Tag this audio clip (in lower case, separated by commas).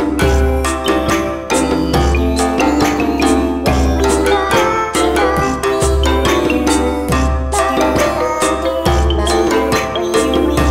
music